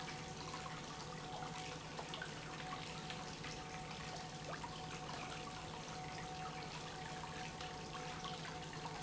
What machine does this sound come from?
pump